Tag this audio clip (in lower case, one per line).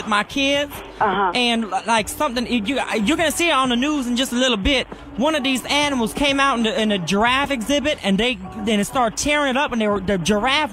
speech
music